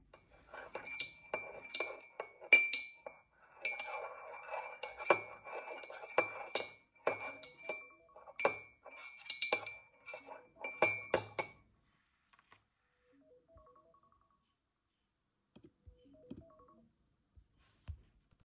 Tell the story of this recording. Whilst I was stirring my tea, I got a phone call